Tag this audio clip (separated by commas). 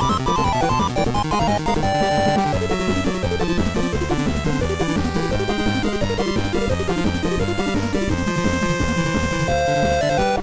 Music